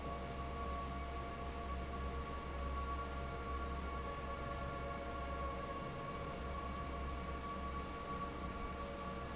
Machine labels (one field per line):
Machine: fan